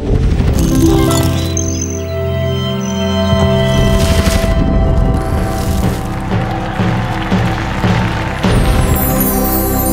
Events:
[0.00, 9.92] music

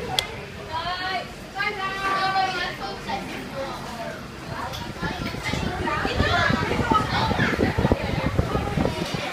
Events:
[0.00, 0.30] speech
[0.00, 9.32] speech noise
[0.00, 9.32] mechanical fan
[0.13, 0.19] tick
[0.62, 1.26] female speech
[1.53, 2.56] female speech
[2.18, 4.10] kid speaking
[3.48, 4.18] man speaking
[4.46, 4.72] man speaking
[4.51, 9.32] kid speaking
[4.62, 9.32] wind noise (microphone)
[4.71, 4.77] tick
[5.81, 6.58] female speech

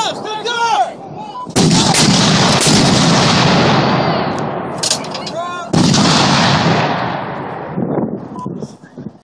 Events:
[0.00, 1.44] male speech
[1.33, 1.47] bleep
[1.54, 5.46] artillery fire
[1.69, 1.98] male speech
[3.68, 4.28] generic impact sounds
[4.38, 4.48] generic impact sounds
[4.79, 5.32] generic impact sounds
[4.95, 5.21] human voice
[5.31, 5.78] male speech
[5.73, 7.88] artillery fire
[7.70, 9.23] wind noise (microphone)
[8.21, 9.14] male speech
[8.35, 8.49] bleep
[8.78, 9.15] brief tone

